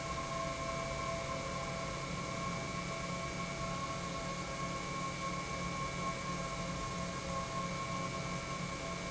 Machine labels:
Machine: pump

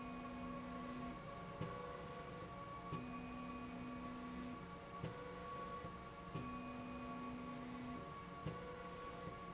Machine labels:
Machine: slide rail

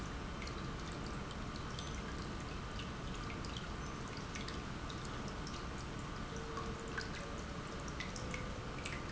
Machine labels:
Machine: pump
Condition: normal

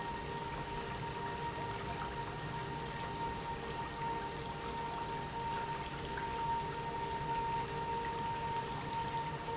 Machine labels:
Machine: pump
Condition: normal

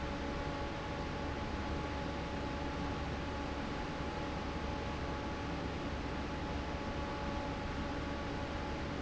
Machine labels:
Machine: fan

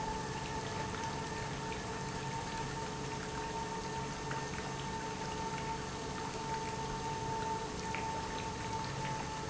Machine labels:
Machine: pump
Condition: normal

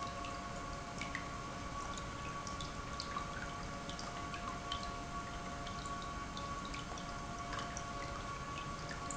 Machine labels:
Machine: pump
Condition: normal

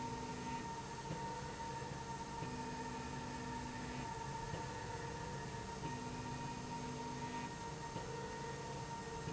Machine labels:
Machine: slide rail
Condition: normal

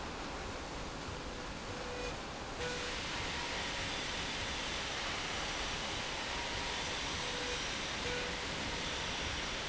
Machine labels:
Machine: slide rail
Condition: normal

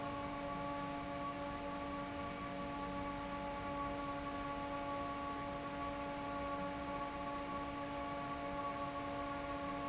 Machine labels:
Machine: fan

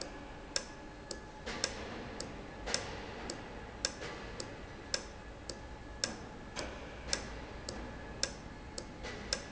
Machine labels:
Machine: valve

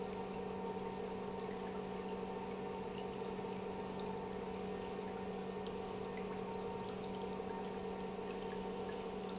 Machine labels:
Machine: pump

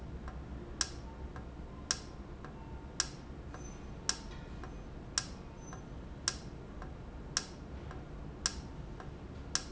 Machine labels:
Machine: valve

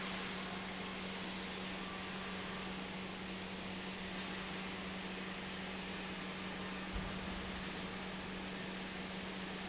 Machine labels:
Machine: pump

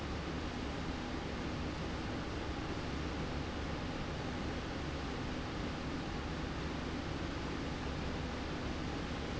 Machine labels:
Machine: slide rail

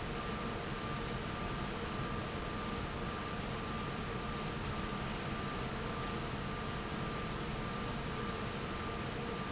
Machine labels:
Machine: fan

